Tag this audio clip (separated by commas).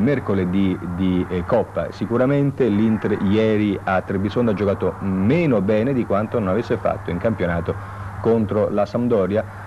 Speech